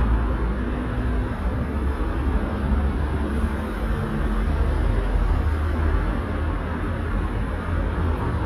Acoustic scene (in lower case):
street